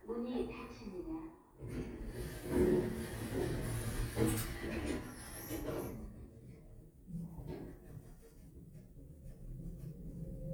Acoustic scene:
elevator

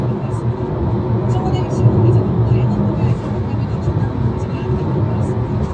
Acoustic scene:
car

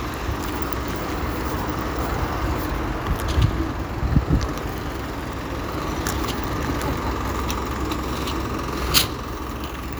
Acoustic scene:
street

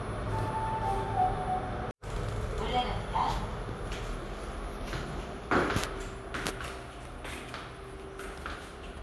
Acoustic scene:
elevator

